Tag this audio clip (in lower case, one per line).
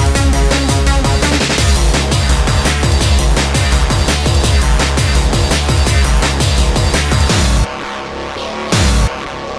music